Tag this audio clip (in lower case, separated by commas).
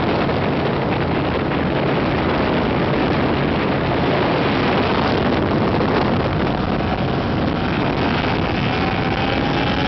speedboat acceleration, motorboat, vehicle